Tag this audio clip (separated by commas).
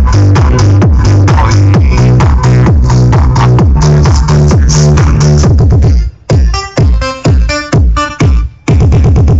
Music